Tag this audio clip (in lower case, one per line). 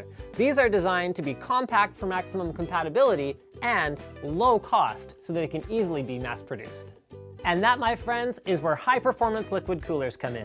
speech
music